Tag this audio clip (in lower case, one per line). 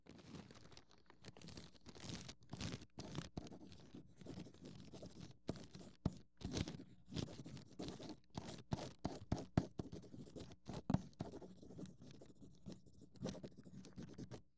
writing
home sounds